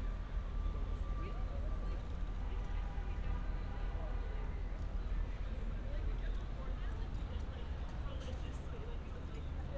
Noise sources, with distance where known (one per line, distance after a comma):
car horn, far
person or small group talking